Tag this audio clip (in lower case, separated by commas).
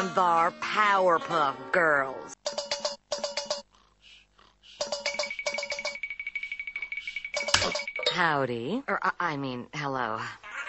speech, music